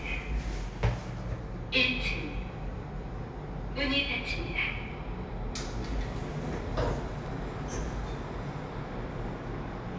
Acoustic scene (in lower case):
elevator